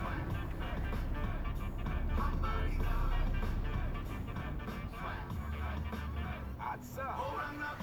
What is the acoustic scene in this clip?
car